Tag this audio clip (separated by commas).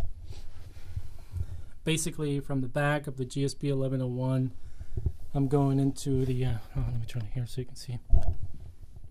Speech